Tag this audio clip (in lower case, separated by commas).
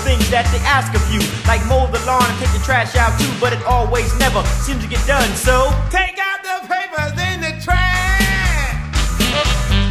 music